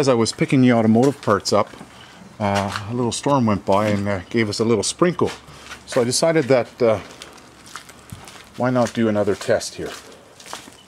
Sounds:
speech

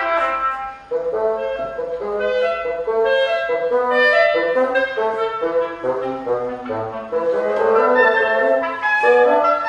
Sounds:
playing clarinet
clarinet

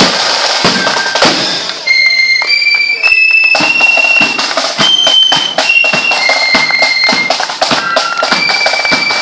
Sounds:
speech
music
walk

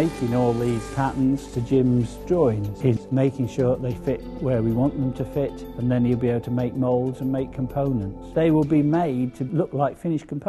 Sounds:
music
speech

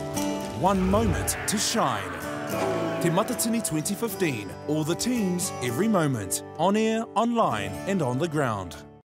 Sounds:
music
speech

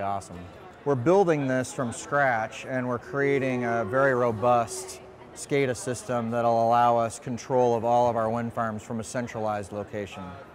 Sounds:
speech

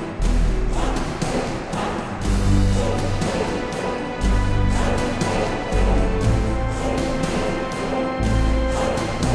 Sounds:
music
video game music

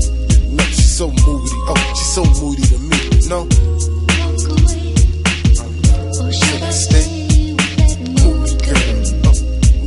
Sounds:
singing
hip hop music
music

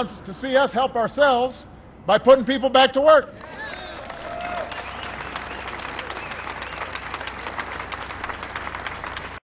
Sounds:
speech
male speech
narration

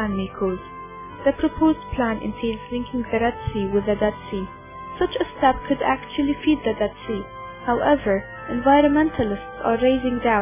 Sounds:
music
speech

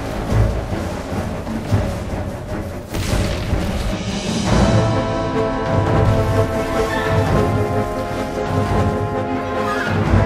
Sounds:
music

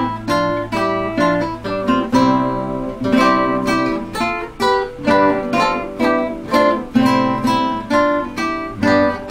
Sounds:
music
musical instrument
guitar
plucked string instrument
strum

